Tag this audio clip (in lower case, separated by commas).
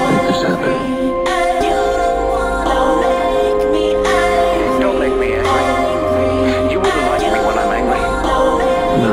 hip hop music, speech, music